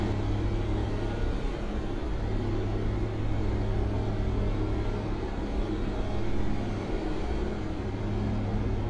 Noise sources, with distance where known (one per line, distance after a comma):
engine of unclear size, near